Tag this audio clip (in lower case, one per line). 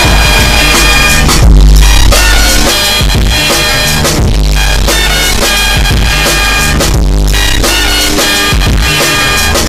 music
sound effect